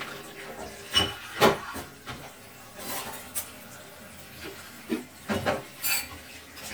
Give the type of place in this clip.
kitchen